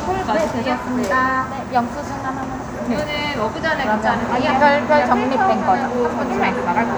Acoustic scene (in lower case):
crowded indoor space